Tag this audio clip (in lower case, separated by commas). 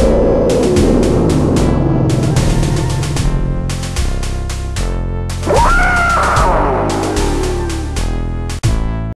music